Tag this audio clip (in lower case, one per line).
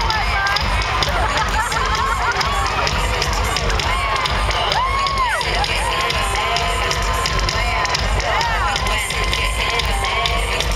speech
music